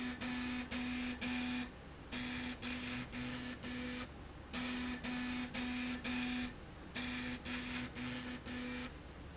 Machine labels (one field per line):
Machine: slide rail